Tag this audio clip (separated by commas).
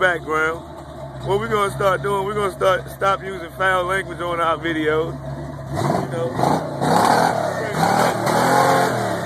Vehicle, Car, Speech